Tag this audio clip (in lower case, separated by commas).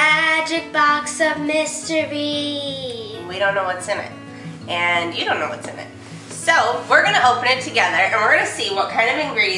music, speech